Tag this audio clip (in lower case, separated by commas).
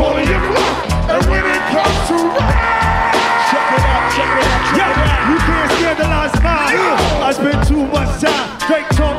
music